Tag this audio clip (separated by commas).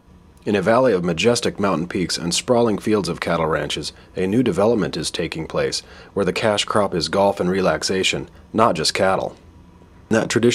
Speech